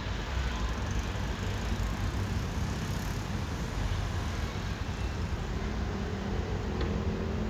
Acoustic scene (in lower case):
residential area